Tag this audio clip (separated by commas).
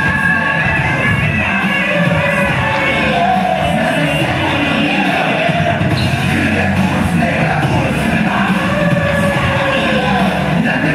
Music, inside a large room or hall